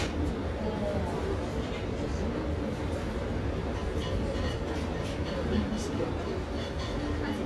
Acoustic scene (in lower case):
restaurant